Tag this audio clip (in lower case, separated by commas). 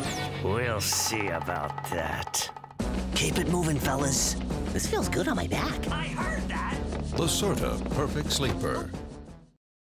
speech, music